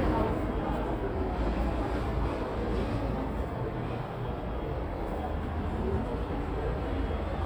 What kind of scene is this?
subway station